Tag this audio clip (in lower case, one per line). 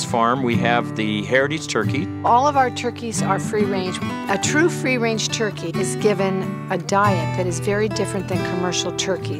speech
music